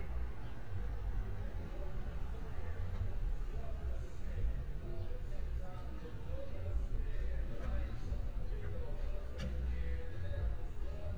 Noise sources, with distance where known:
unidentified human voice

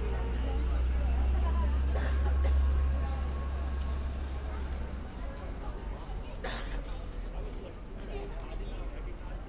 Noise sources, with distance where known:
person or small group talking, near; large crowd, near

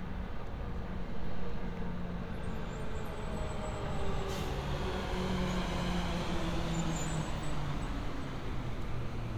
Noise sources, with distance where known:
large-sounding engine, near

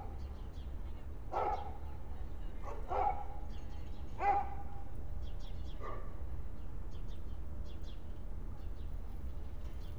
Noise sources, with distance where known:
dog barking or whining, near

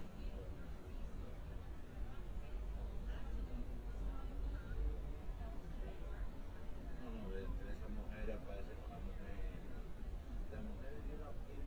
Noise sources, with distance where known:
background noise

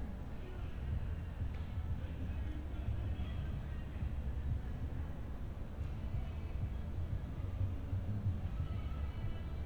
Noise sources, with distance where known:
music from a moving source, far

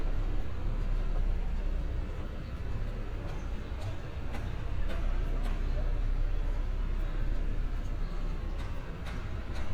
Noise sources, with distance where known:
engine of unclear size, near; non-machinery impact

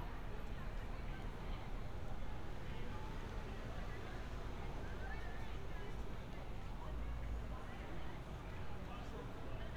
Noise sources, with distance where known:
unidentified human voice, far

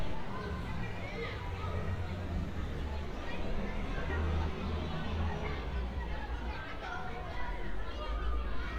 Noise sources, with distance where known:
person or small group talking, far

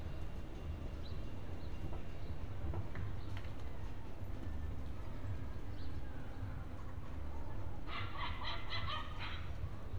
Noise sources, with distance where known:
dog barking or whining, near

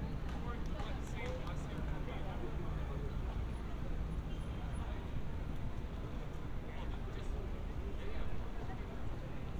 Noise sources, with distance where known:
background noise

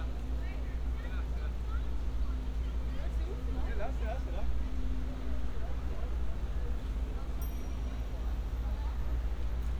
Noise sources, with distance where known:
person or small group talking, near

